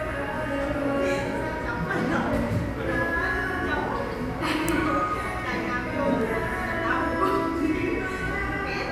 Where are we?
in a cafe